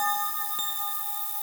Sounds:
bell

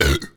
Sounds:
burping

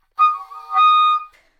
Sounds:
wind instrument
musical instrument
music

